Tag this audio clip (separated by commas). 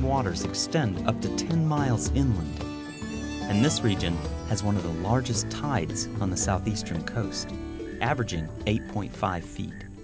Music, Speech